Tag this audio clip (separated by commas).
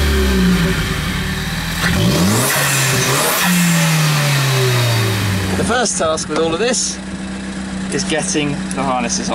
Car, outside, urban or man-made, Medium engine (mid frequency), Speech, Vehicle